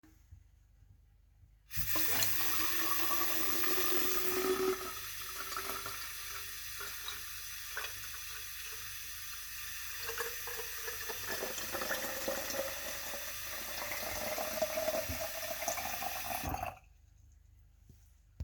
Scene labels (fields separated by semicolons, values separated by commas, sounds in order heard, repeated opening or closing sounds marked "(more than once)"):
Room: kitchen; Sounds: running water